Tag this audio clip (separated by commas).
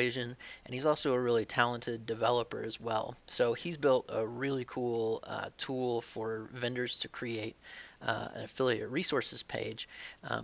Speech